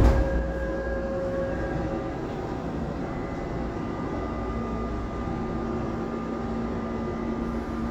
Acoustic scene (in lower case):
subway train